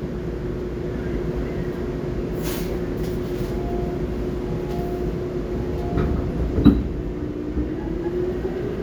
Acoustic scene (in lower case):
subway train